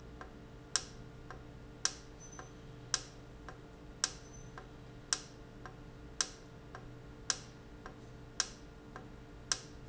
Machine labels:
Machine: valve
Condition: normal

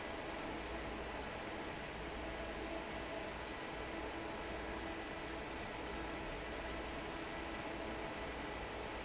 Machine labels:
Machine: fan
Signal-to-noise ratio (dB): 6 dB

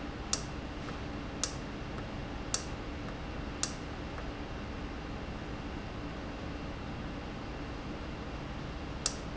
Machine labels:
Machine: valve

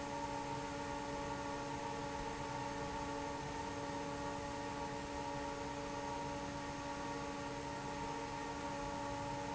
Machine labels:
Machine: fan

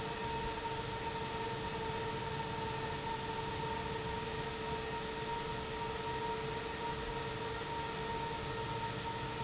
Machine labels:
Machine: pump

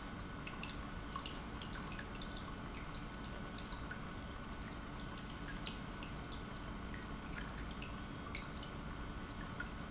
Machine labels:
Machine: pump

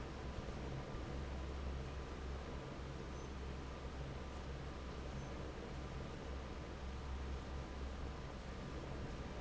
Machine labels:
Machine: fan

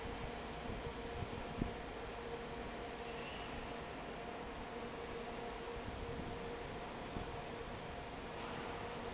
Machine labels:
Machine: fan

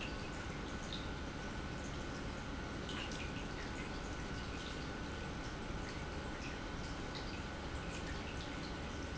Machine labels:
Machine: pump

